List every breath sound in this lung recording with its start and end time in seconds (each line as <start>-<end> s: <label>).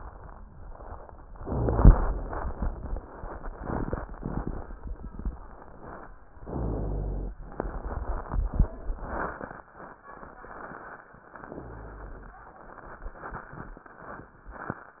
1.26-2.12 s: inhalation
1.26-2.12 s: rhonchi
6.43-7.35 s: inhalation
6.43-7.35 s: rhonchi
11.44-12.37 s: inhalation
11.44-12.37 s: rhonchi